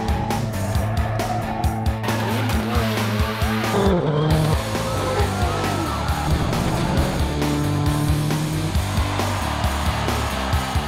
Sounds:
music

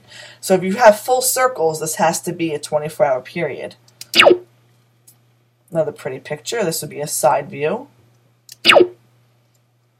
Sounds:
speech
inside a small room

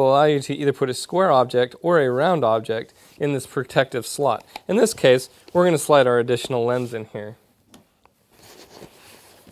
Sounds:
speech

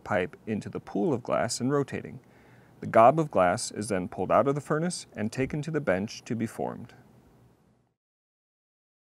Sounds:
speech

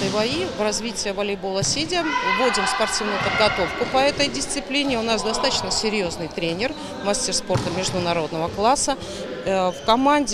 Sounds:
playing volleyball

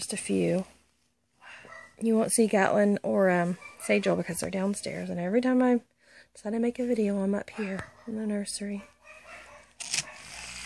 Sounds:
animal
speech
inside a small room
dog

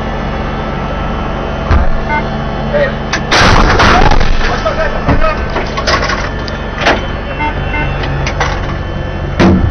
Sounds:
gunshot
artillery fire

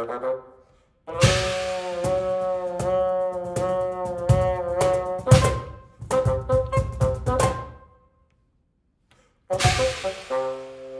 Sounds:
speech
percussion
music

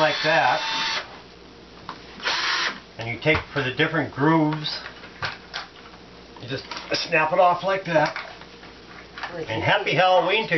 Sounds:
speech
drill

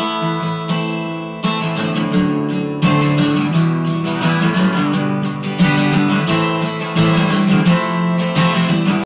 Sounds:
music

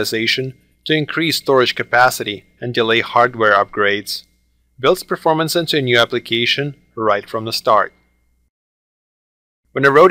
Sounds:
speech

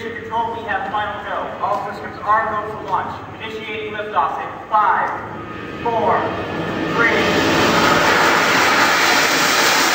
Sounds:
speech

